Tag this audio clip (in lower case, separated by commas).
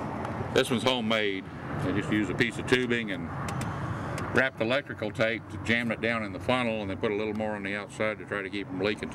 speech